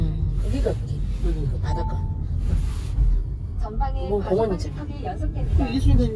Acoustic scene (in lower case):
car